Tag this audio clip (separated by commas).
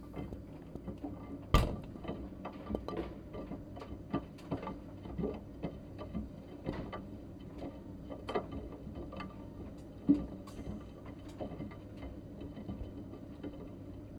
Engine